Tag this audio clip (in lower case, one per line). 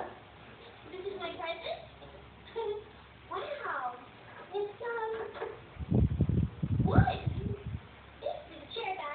speech